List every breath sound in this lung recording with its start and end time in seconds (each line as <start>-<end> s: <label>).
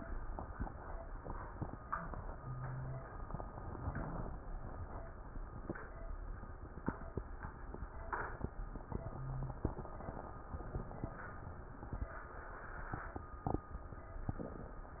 2.41-3.06 s: wheeze
9.01-9.66 s: wheeze